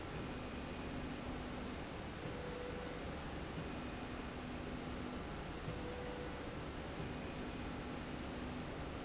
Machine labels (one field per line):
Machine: slide rail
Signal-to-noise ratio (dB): 0 dB